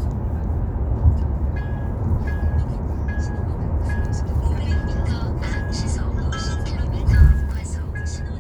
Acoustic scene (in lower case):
car